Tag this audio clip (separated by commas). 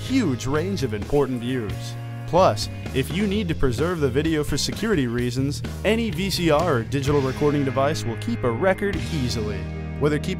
Speech, Music